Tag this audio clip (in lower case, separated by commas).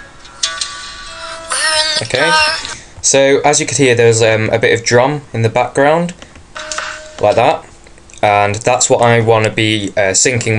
speech